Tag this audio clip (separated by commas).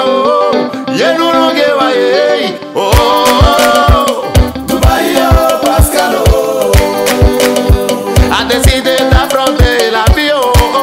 Music